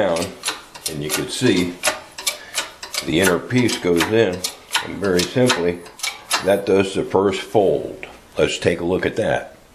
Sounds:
speech

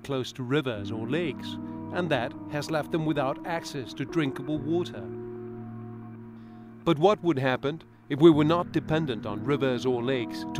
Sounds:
speech, music

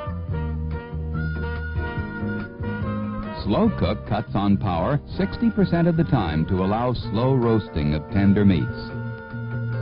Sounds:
speech, music

